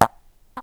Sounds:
fart

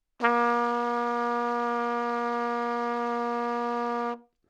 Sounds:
trumpet, music, musical instrument, brass instrument

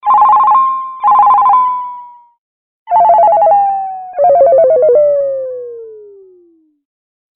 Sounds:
telephone, alarm

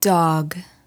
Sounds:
speech, human voice, female speech

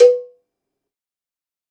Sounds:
bell, cowbell

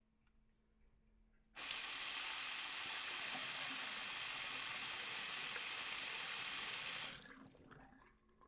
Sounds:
sink (filling or washing), home sounds

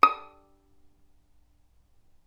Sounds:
bowed string instrument, musical instrument, music

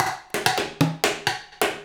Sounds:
percussion, drum, musical instrument, music, drum kit

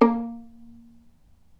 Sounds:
musical instrument, music, bowed string instrument

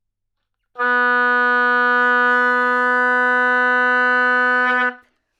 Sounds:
music, wind instrument, musical instrument

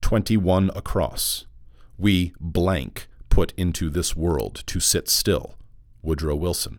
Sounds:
male speech, speech, human voice

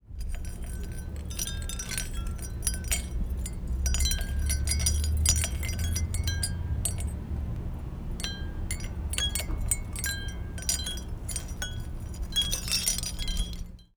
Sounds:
bell, chime, wind chime

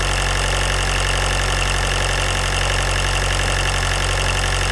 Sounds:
engine, idling

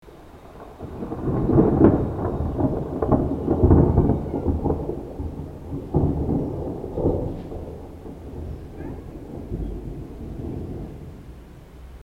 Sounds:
rain, water, thunderstorm, thunder

